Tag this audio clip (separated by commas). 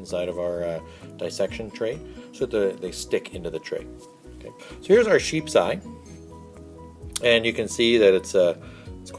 Music, Speech